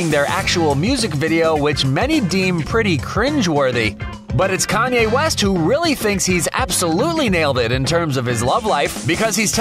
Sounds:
music, speech

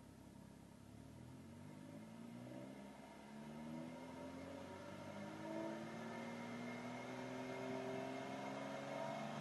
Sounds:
revving, vehicle

